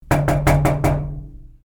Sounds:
Knock, Door, Domestic sounds

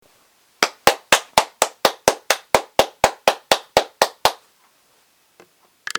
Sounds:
Clapping, Hands

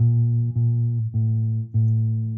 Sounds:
Musical instrument, Bass guitar, Plucked string instrument, Guitar, Music

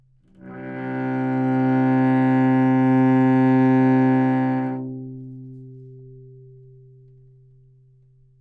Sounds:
Musical instrument, Bowed string instrument, Music

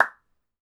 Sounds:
Hands, Clapping

